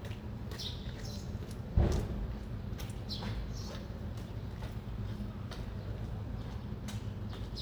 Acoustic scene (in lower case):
residential area